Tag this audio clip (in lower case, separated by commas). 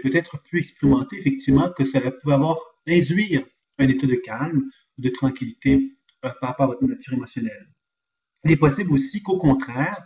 speech